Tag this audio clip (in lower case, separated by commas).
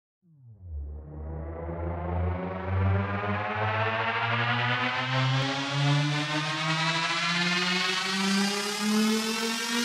music, electronic music, trance music